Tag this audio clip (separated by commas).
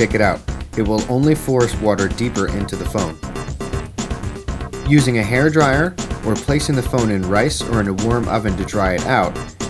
Music, Speech